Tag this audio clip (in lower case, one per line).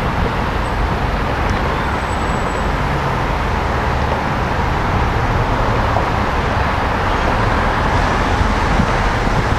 train
outside, urban or man-made
railroad car
vehicle